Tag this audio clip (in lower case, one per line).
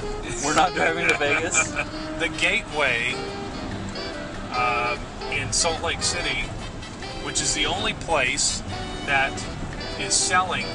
speech
music